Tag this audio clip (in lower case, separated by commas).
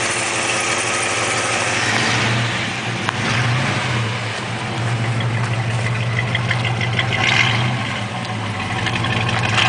idling, engine, vehicle, car